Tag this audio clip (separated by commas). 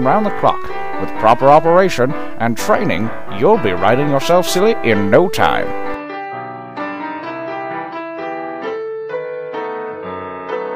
Speech, Music